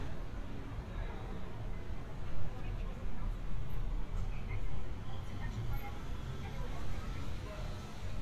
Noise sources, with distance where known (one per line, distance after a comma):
unidentified human voice, far